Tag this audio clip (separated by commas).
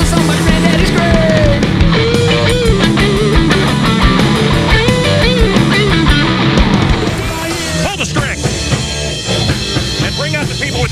Rock and roll, Speech, Music